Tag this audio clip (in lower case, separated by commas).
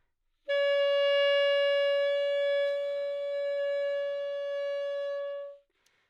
woodwind instrument, music, musical instrument